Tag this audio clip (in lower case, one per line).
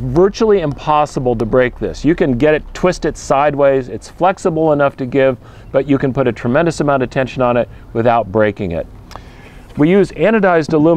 speech